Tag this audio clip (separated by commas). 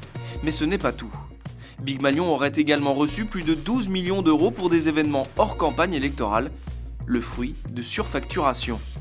Speech, Music